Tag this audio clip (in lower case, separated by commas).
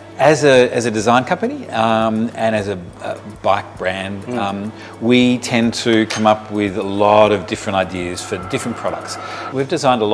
music, speech